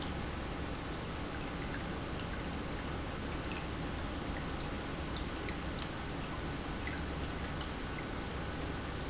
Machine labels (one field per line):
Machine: pump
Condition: normal